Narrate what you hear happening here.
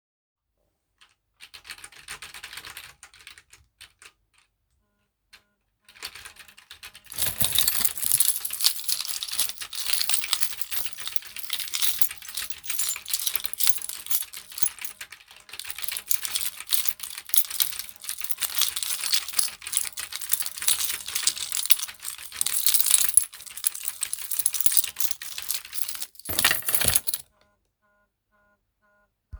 Typing on keyboard while phone notification and keychain sounds occur.